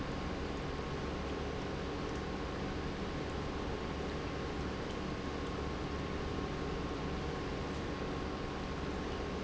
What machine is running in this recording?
pump